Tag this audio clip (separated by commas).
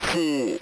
Human voice, Speech synthesizer, Speech